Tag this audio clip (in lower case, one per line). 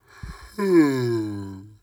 human voice